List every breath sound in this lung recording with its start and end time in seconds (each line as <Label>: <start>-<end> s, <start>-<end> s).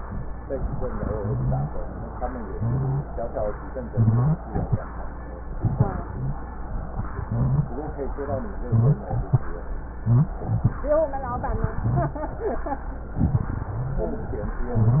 Rhonchi: 1.10-1.73 s, 2.50-3.13 s, 3.91-4.46 s, 7.21-7.76 s, 11.69-12.24 s, 13.72-14.13 s, 14.59-15.00 s